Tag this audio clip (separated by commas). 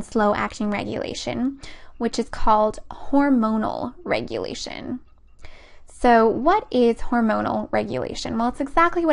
monologue